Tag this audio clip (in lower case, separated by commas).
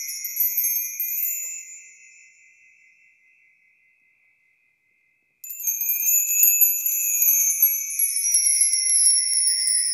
wind chime